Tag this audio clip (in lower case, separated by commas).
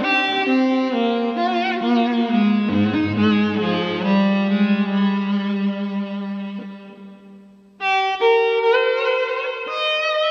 musical instrument, fiddle, music